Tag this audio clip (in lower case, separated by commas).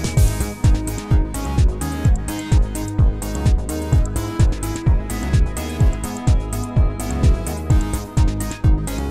music